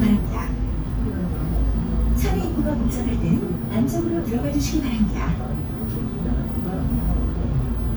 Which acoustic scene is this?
bus